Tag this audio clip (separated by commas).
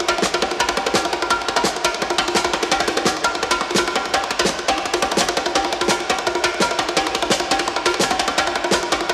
playing bongo